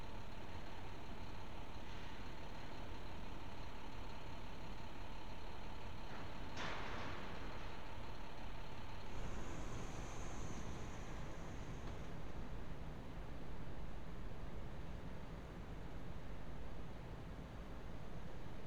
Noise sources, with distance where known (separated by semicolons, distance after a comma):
background noise